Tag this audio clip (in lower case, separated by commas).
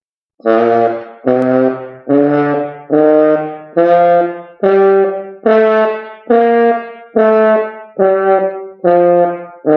playing french horn